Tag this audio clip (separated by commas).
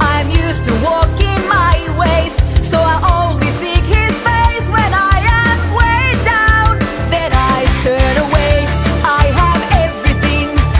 Music